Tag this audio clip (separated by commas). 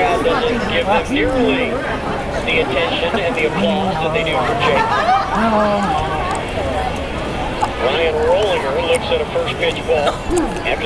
Speech